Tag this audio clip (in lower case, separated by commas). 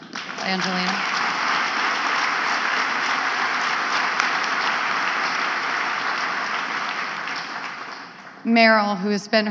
woman speaking